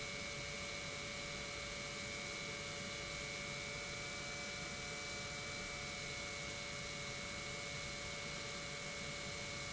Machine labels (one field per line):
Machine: pump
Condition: normal